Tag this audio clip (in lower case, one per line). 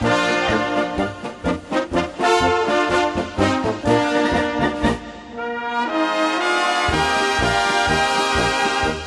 music